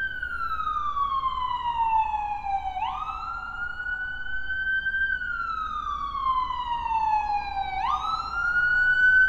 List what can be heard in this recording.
siren